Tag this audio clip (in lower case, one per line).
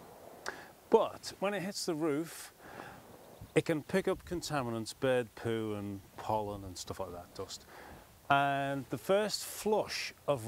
speech